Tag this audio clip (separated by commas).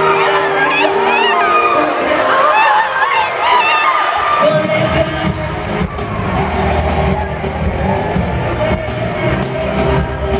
inside a public space, Speech, Singing, Music